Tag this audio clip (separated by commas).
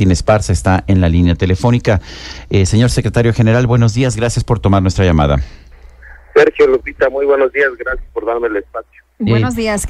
Radio, Speech